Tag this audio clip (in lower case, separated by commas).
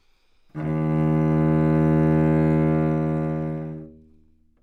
bowed string instrument, musical instrument, music